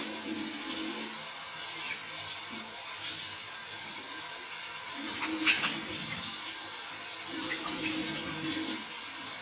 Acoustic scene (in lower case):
restroom